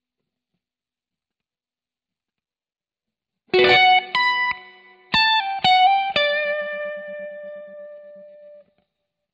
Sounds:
Music, inside a small room, Musical instrument, Bass guitar, Guitar, Silence, Plucked string instrument

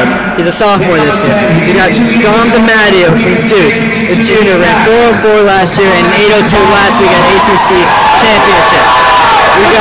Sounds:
Speech, outside, urban or man-made

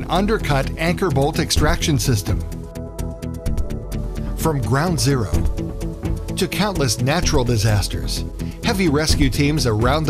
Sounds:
Speech, Music

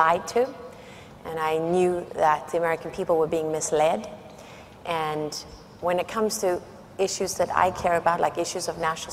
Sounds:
Speech, woman speaking, monologue

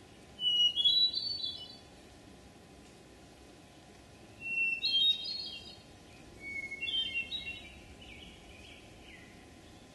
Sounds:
wood thrush calling

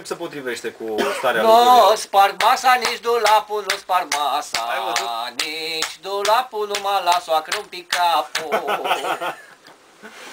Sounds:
Speech

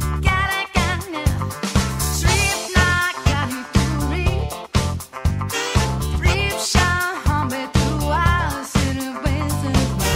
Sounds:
Music

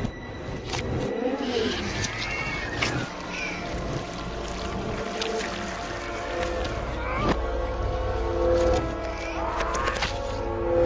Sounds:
Music

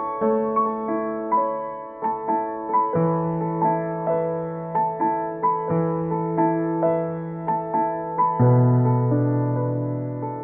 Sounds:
Music

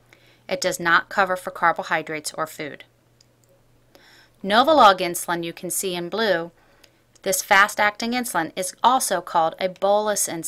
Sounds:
Speech

